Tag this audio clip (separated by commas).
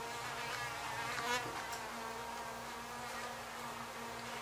Insect, Wild animals, Buzz, Animal